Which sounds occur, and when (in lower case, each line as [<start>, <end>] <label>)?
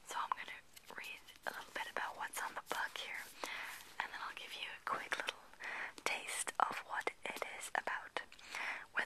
[0.00, 0.59] whispering
[0.19, 0.36] generic impact sounds
[0.73, 3.27] whispering
[0.81, 1.18] surface contact
[1.40, 2.05] surface contact
[2.60, 4.43] surface contact
[3.33, 3.50] human voice
[3.37, 3.88] breathing
[3.93, 5.35] whispering
[5.10, 5.33] human voice
[5.54, 5.92] breathing
[5.93, 6.13] human voice
[6.00, 8.32] whispering
[7.34, 7.50] generic impact sounds
[8.25, 8.44] human voice
[8.39, 8.84] breathing